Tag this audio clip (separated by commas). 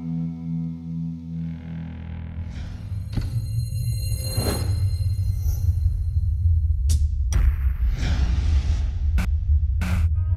Electric guitar, Plucked string instrument, Musical instrument, Guitar, Music